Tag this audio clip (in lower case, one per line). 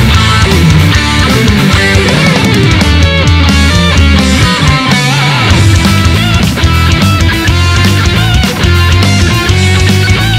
strum
guitar
music
electric guitar
plucked string instrument
musical instrument